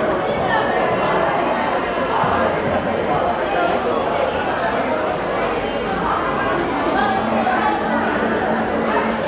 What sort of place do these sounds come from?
crowded indoor space